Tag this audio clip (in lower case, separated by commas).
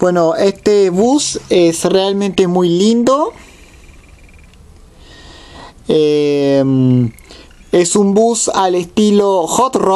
speech